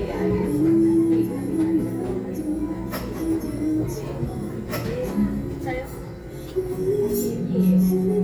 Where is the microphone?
in a crowded indoor space